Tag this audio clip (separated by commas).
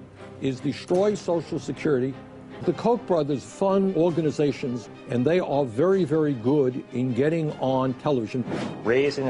Speech, Music